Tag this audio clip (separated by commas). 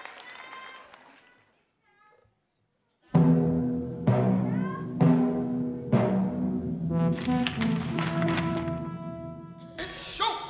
Timpani, Music